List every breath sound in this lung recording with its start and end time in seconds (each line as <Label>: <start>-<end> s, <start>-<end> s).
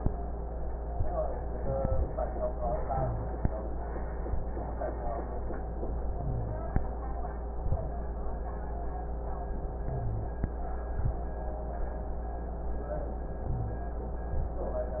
Rhonchi: 2.87-3.38 s, 6.11-6.62 s, 9.87-10.38 s, 13.47-13.98 s